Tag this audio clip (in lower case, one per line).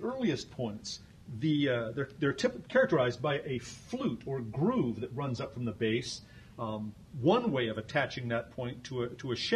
speech